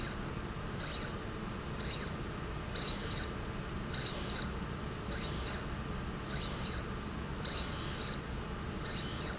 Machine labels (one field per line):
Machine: slide rail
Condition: abnormal